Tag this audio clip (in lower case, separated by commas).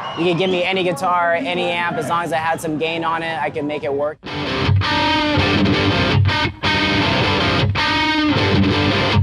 music, speech